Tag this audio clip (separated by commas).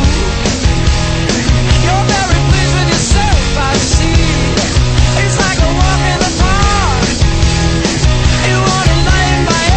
Music, Exciting music